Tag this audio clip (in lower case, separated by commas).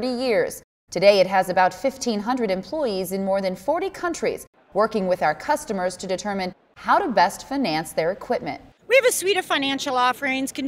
speech